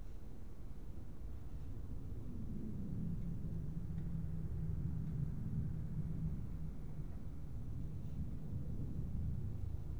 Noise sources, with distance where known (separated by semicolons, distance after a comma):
engine of unclear size, far